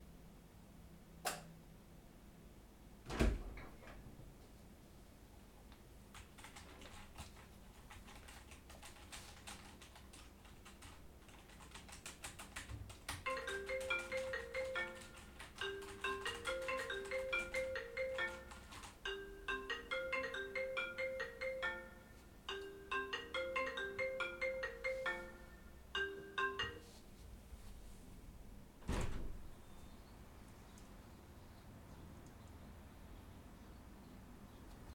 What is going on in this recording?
The light was switched on and a door was opened. Typing on the keyboard began, then an iPhone ringtone rang with a partial overlap. When it stopped, the window was opened.